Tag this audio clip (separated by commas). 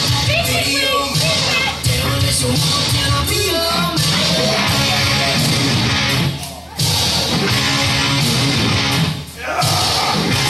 Music, Speech